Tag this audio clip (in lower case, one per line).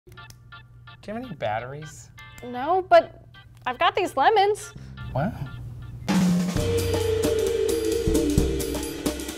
snare drum
hi-hat
speech
cymbal
music